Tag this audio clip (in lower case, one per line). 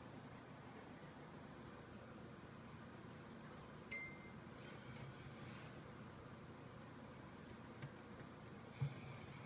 inside a small room